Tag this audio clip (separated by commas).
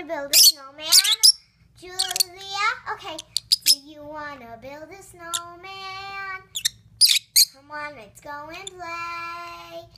Female singing, Speech, Child singing